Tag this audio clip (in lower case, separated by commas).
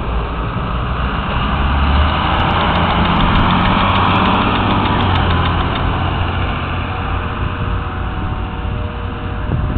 vehicle, bus